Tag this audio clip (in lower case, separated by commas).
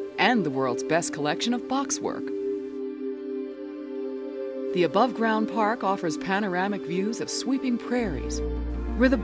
music, speech